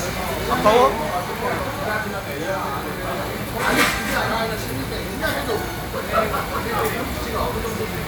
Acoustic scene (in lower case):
crowded indoor space